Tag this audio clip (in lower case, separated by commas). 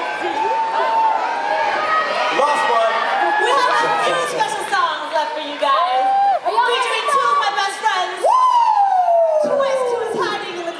whoop, speech